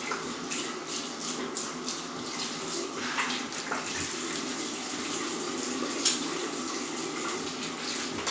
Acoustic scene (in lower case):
restroom